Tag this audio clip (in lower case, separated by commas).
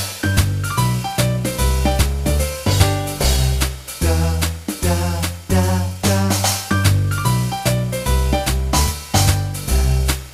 music, funk